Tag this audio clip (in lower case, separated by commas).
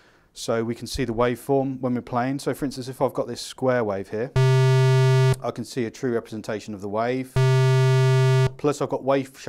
music, sampler, speech